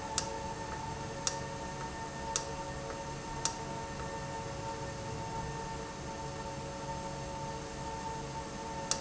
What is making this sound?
valve